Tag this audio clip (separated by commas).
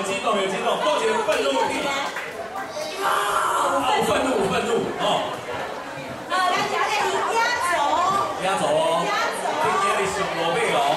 Child speech, Speech